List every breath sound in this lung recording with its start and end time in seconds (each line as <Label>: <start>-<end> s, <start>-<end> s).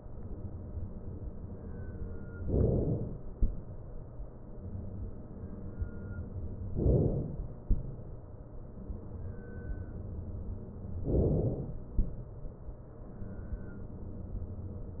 Inhalation: 2.41-3.29 s, 6.75-7.63 s, 11.09-11.97 s